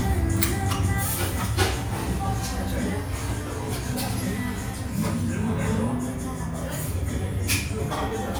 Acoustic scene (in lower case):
restaurant